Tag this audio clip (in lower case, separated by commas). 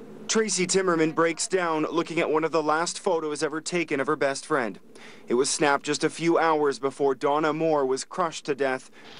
speech